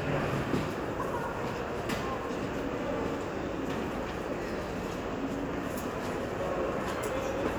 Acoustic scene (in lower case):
crowded indoor space